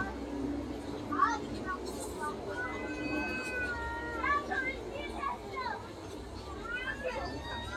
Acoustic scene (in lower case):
park